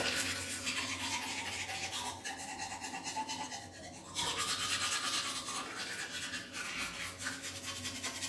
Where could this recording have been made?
in a restroom